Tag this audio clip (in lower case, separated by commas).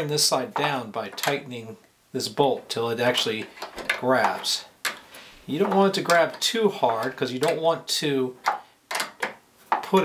speech